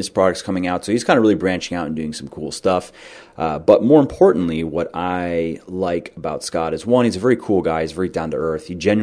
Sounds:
speech

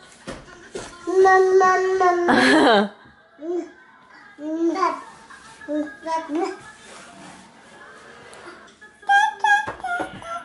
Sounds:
kid speaking, inside a small room, speech

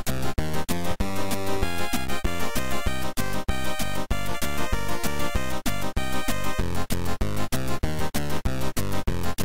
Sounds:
music

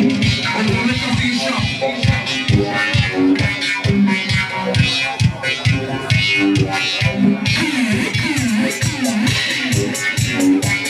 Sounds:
speech, music

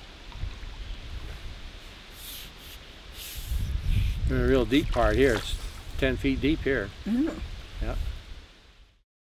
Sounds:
wind, wind noise (microphone)

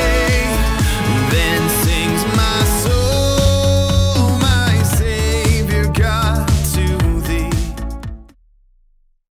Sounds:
music, house music

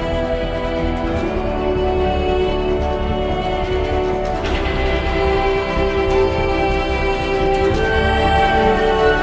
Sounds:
music

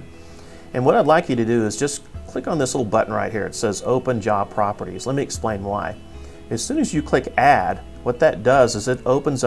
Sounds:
music, speech

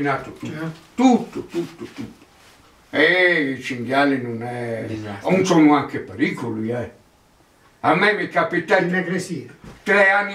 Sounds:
speech

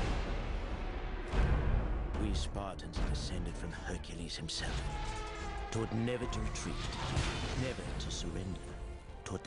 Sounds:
speech, music

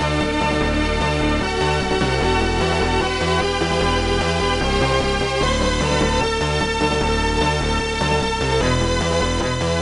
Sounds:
music, pop music

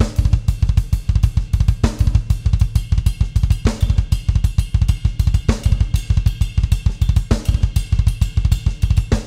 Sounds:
playing bass drum

